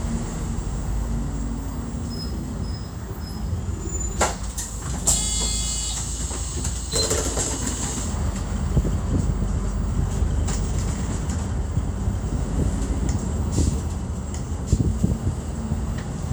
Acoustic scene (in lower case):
bus